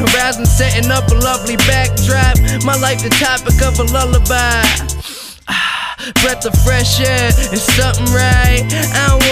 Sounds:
music

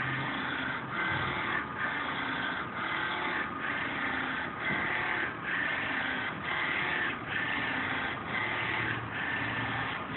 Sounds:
printer, printer printing

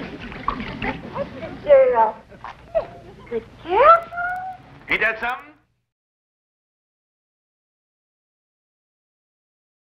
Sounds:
speech

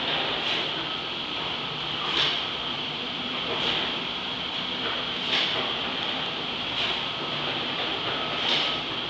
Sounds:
accelerating, heavy engine (low frequency), idling, engine

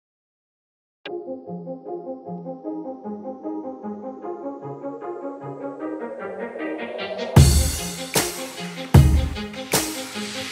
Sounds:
brass instrument

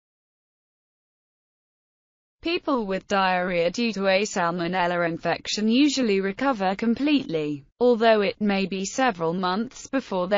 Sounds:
speech

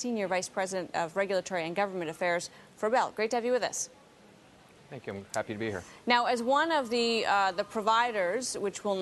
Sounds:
speech

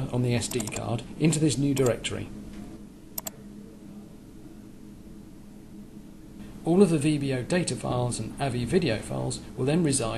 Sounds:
speech

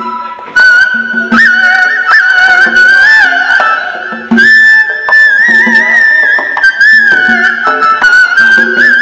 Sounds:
music, speech

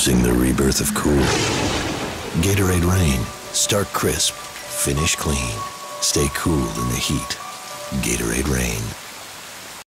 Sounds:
thunder, thunderstorm, rain

